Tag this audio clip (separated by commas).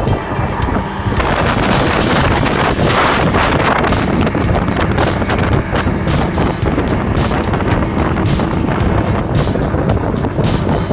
motorboat